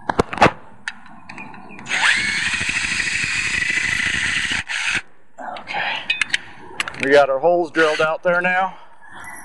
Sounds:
Speech

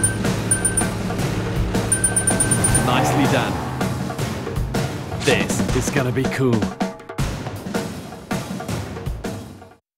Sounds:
Music, Speech

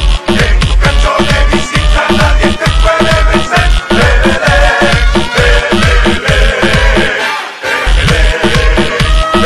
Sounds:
Music, Electronica

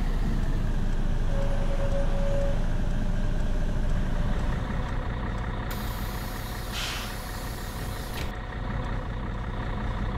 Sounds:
Vehicle

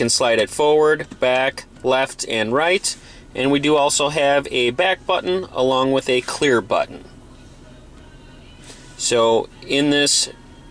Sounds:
Music, Speech

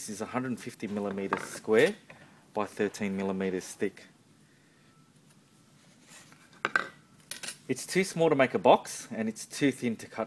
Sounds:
Speech

